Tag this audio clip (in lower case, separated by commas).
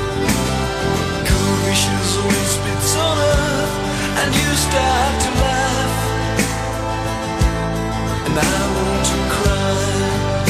music